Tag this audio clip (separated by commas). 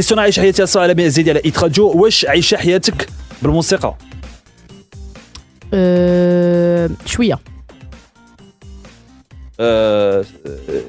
Music, Speech